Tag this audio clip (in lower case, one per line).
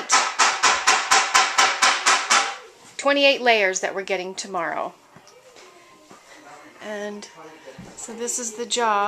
speech